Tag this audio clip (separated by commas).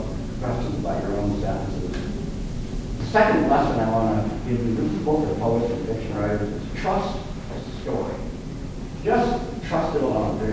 Speech